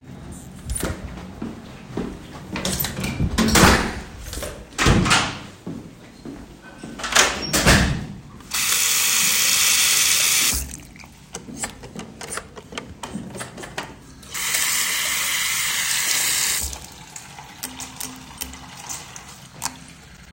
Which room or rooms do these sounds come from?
bathroom